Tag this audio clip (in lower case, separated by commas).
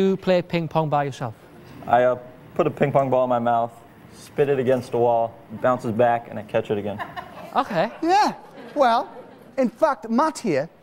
speech